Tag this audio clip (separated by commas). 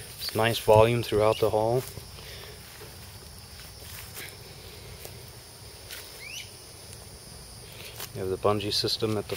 Speech